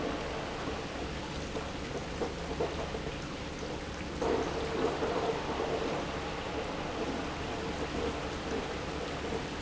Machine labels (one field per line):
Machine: pump